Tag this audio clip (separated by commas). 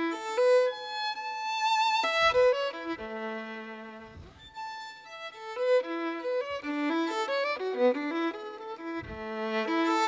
Musical instrument, Music, Violin